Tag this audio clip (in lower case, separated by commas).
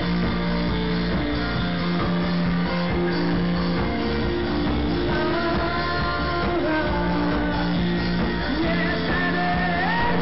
inside a public space, music, inside a large room or hall